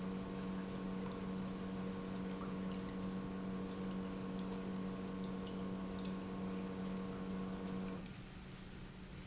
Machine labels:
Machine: pump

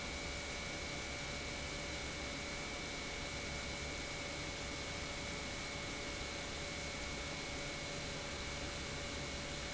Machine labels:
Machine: pump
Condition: normal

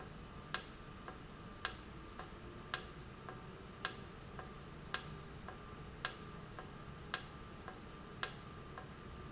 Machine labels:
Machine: valve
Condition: normal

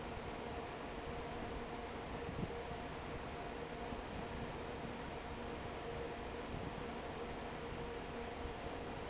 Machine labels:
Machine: fan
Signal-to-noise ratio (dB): 6 dB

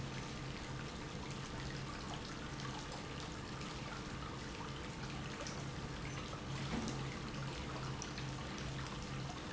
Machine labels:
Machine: pump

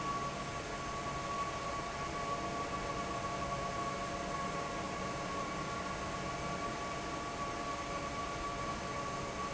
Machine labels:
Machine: fan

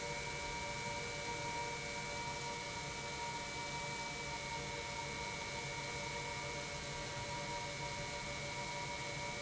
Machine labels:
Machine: pump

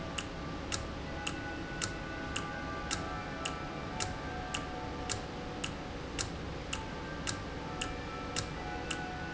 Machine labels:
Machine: valve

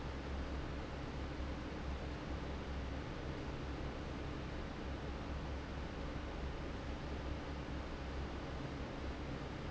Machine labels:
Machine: fan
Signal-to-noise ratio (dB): 0 dB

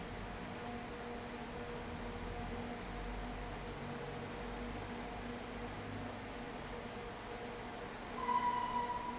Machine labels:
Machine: fan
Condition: abnormal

